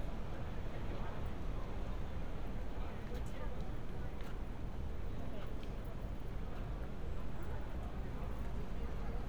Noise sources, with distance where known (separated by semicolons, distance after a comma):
person or small group talking, far